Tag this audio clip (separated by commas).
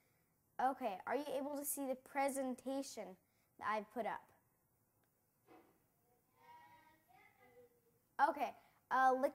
Speech